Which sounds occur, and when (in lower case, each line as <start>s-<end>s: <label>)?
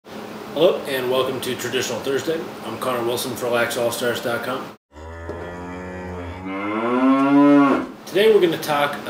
0.0s-4.7s: mechanisms
0.5s-2.4s: male speech
2.6s-4.6s: male speech
4.9s-7.9s: moo
5.2s-5.3s: generic impact sounds
7.1s-7.3s: surface contact
7.8s-9.0s: mechanisms
8.0s-8.9s: male speech
9.0s-9.0s: male speech